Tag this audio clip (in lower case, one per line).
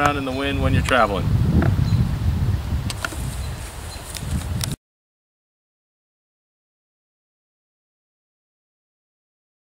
outside, rural or natural
speech
silence